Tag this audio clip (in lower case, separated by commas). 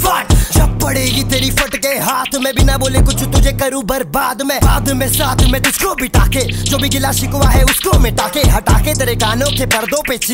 rapping